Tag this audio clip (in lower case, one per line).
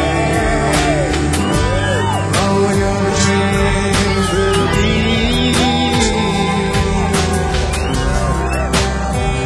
speech
music